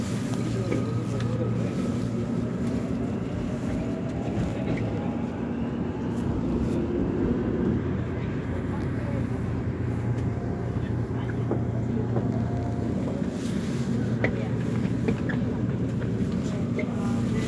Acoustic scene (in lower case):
subway train